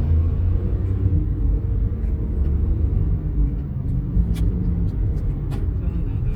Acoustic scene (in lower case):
car